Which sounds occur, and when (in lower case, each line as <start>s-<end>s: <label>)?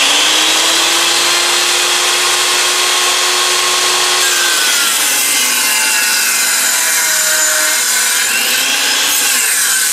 0.0s-9.9s: sawing